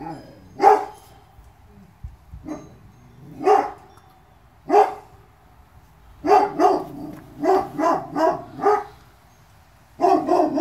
A dog barks continuously